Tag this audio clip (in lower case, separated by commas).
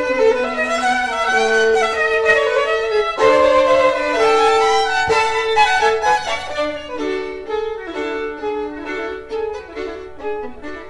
violin, music, musical instrument